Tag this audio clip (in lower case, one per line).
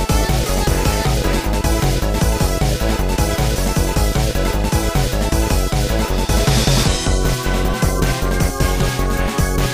music
soundtrack music